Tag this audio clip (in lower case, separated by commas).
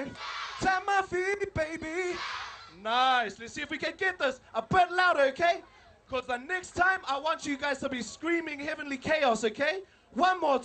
music, speech